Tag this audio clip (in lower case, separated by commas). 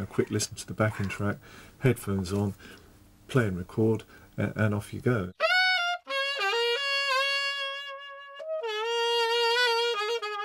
music, saxophone, inside a small room, speech